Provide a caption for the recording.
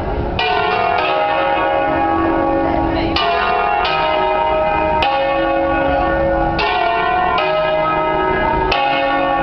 Bell ringing loudly with faint murmuring